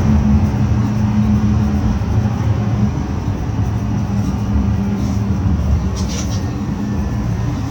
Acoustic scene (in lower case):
bus